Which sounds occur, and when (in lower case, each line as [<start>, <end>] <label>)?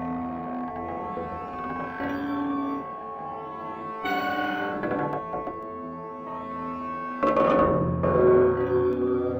[0.01, 9.35] music
[0.17, 2.95] noise
[3.86, 5.75] noise
[7.04, 9.00] noise